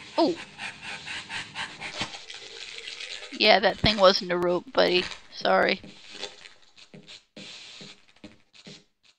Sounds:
speech
inside a large room or hall

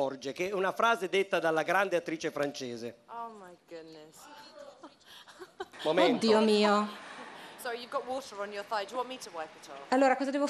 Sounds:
speech

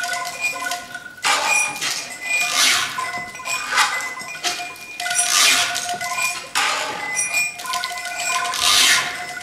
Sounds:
percussion
musical instrument
music

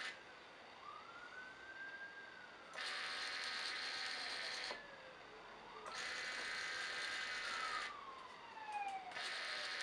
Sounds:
vehicle

